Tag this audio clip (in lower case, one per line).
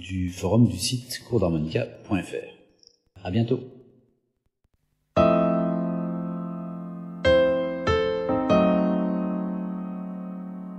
electric piano
speech
music